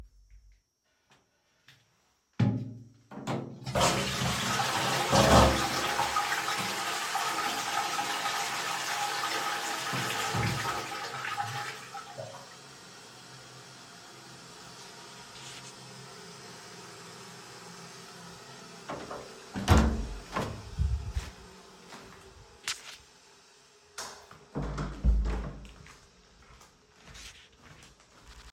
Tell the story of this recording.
I flushed the toilet and waited a moment. I then opened the door and walked out with heavy footsteps.